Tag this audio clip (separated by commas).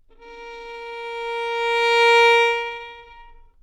Musical instrument, Bowed string instrument, Music